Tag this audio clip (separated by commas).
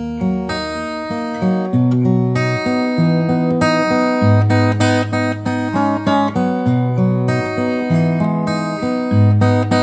Musical instrument, Music, Guitar, Acoustic guitar